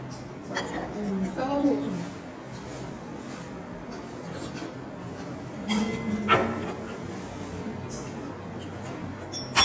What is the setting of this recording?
restaurant